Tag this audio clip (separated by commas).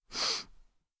Breathing, Respiratory sounds